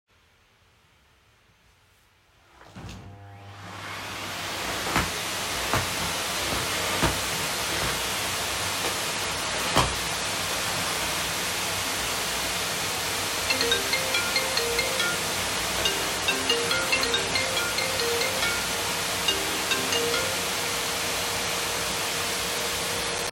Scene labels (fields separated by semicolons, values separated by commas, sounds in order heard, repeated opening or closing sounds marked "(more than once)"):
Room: bedroom; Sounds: vacuum cleaner, phone ringing